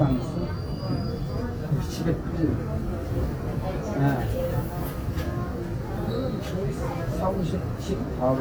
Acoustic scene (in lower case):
subway train